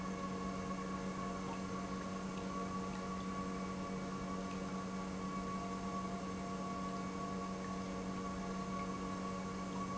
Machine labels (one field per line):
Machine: pump